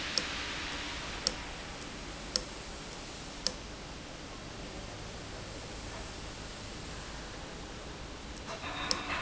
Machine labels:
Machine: valve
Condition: abnormal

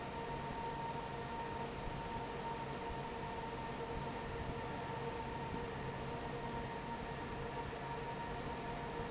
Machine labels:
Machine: fan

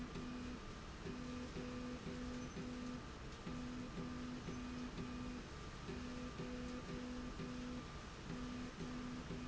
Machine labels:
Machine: slide rail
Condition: normal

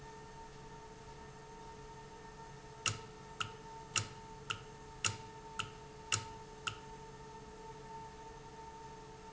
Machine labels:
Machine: valve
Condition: normal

